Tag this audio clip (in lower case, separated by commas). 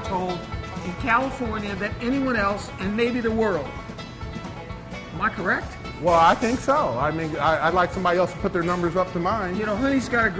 music, speech